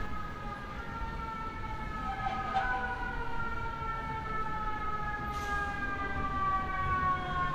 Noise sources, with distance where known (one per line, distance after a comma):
siren, far